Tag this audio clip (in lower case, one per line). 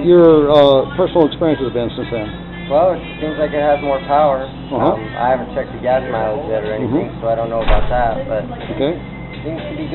inside a small room
music
speech